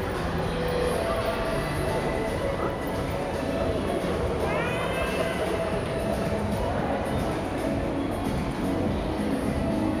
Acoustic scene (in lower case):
crowded indoor space